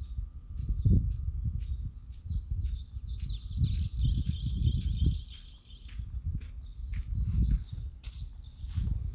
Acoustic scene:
park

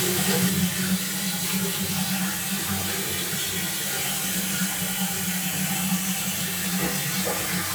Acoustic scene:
restroom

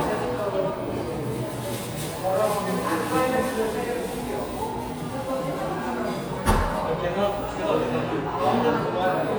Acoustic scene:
crowded indoor space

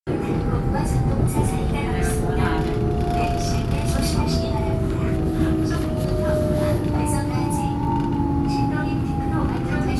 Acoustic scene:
subway train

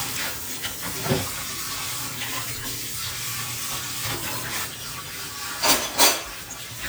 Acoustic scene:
kitchen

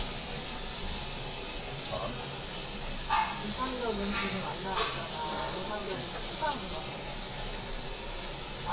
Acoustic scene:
restaurant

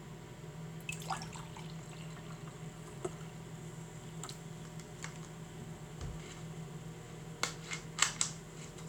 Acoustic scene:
kitchen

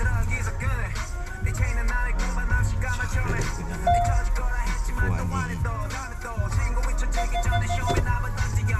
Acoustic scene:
car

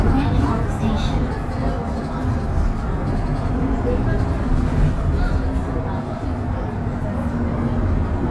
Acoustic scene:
bus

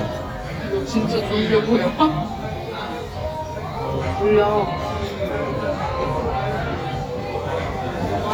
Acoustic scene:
crowded indoor space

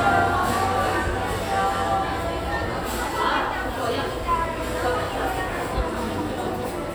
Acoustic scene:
crowded indoor space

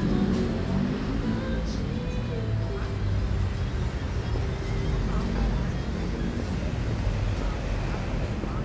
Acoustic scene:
street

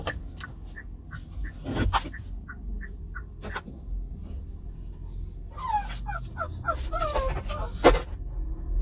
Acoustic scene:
car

